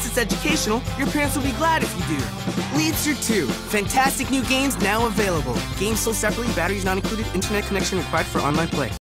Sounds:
Music, Speech

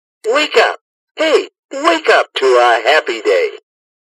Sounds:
Speech

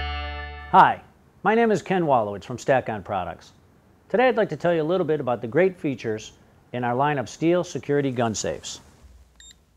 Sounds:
Speech

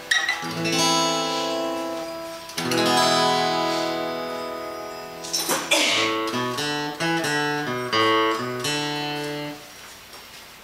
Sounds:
Music

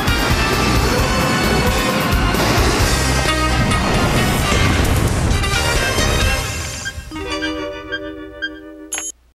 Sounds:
Music

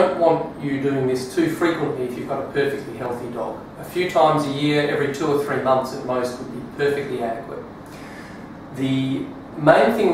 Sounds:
Speech

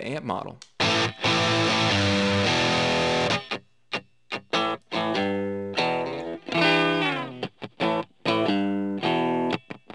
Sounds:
Music, Effects unit, Distortion, Speech

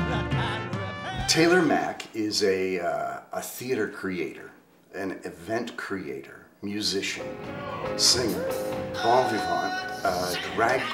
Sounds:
Speech, Music

